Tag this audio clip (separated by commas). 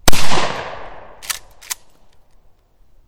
Explosion, gunfire